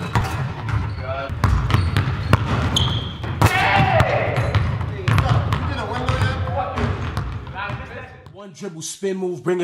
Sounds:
basketball bounce

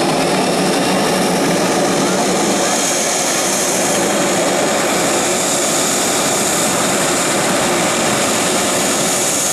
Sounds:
vehicle
aircraft
fixed-wing aircraft

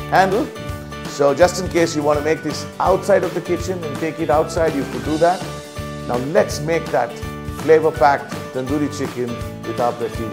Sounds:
speech
music

